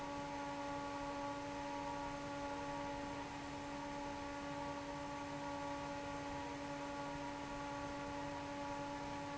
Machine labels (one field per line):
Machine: fan